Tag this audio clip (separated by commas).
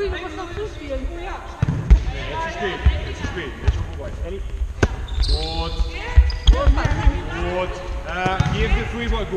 playing volleyball